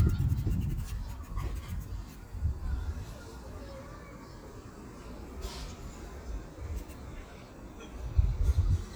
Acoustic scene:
park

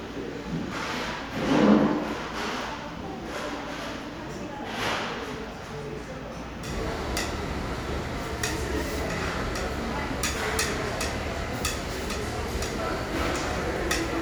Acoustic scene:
restaurant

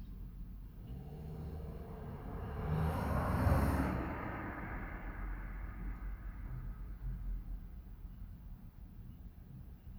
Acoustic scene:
residential area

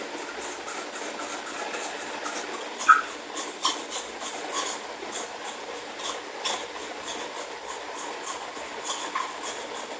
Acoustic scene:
restroom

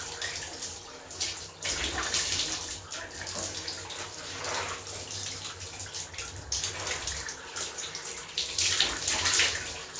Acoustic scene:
restroom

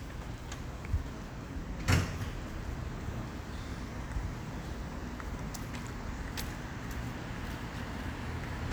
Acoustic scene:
residential area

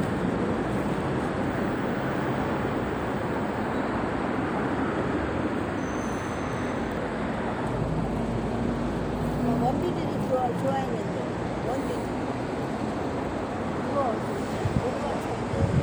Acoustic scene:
street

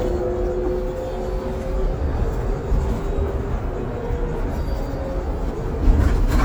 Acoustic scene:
bus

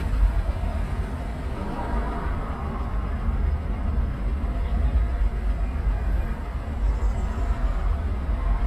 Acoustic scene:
car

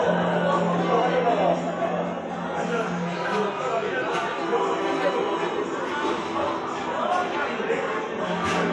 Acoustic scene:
cafe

